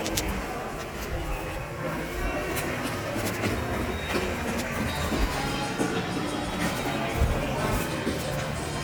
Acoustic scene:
subway station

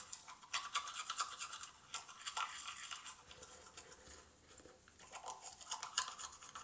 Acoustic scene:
restroom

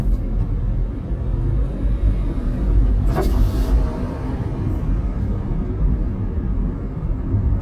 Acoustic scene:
car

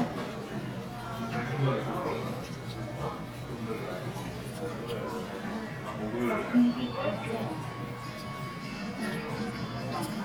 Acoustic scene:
crowded indoor space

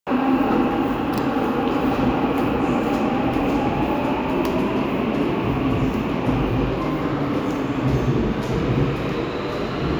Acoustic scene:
subway station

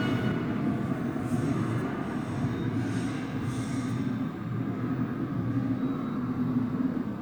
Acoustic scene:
subway station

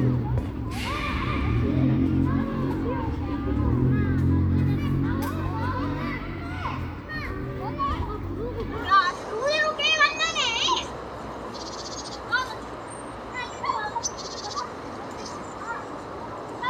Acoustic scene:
park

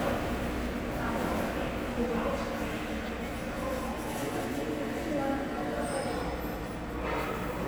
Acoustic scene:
subway station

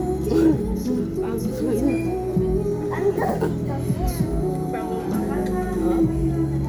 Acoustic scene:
crowded indoor space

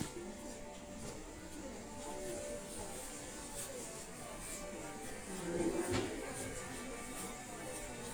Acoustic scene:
crowded indoor space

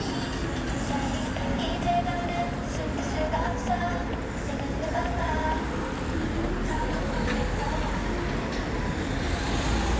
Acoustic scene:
street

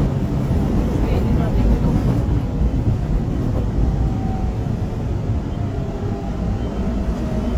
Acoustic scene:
subway train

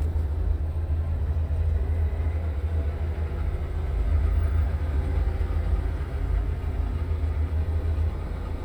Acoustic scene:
car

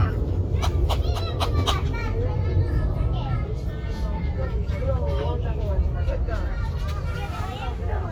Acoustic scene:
residential area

